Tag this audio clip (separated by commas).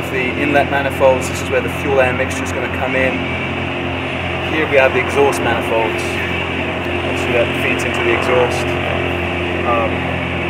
car engine idling